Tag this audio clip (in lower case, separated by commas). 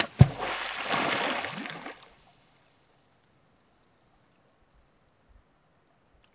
splatter, water, liquid